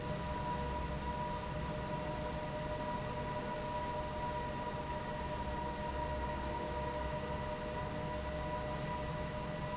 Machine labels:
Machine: fan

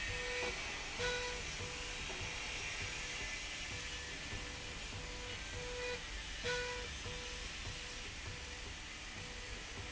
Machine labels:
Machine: slide rail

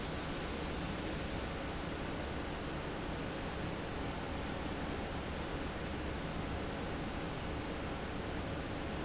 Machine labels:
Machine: fan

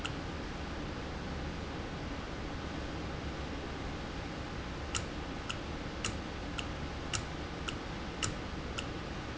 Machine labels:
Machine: valve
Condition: normal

